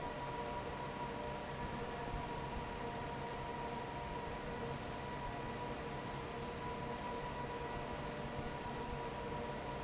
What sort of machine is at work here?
fan